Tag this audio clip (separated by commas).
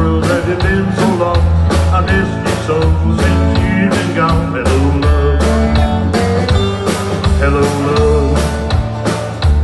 Country, Music